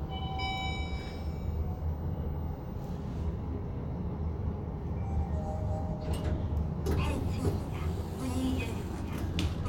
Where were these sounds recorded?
in an elevator